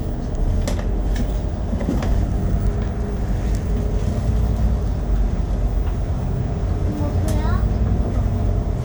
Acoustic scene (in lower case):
bus